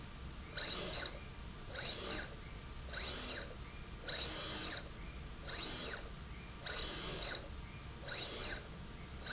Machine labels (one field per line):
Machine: slide rail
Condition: abnormal